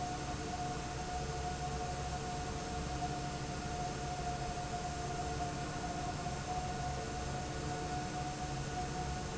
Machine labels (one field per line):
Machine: fan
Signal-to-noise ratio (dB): -6 dB